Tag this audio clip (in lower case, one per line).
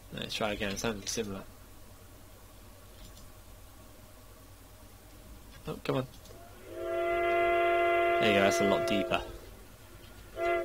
train
speech